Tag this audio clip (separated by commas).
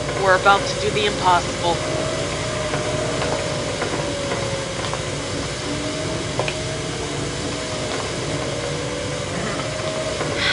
Music, Speech, inside a large room or hall